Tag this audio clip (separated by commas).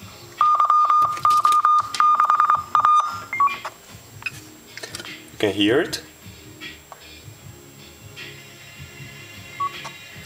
Beep, Speech, Buzzer, Music